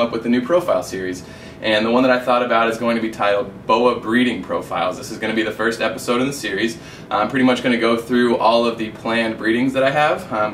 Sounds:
inside a small room, Speech

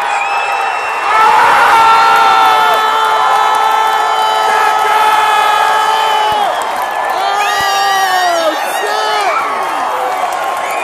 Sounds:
Speech

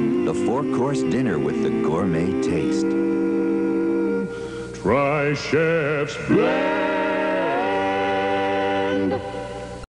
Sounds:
Speech, Music

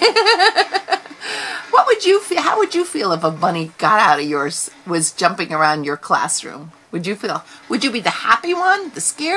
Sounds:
Speech, inside a large room or hall

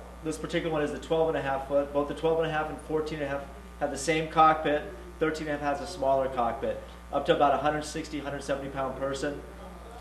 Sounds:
Speech

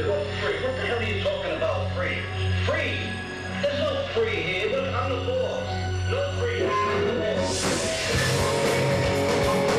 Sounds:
Speech, Music

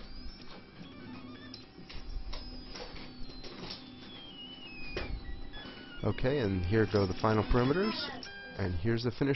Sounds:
Speech

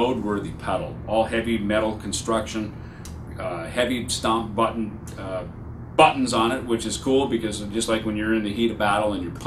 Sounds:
Speech

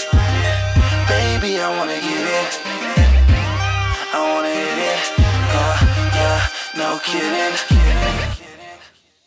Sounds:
Music

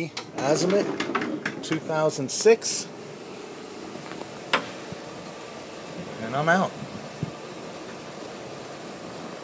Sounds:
Speech, Sliding door

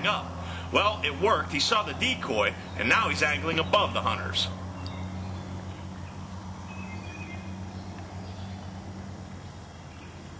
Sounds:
Bird, Speech

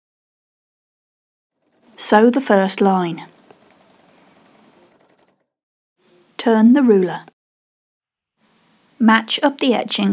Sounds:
inside a small room, Speech, Sewing machine

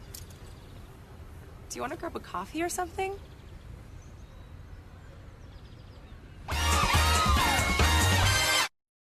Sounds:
Music, Animal, Speech

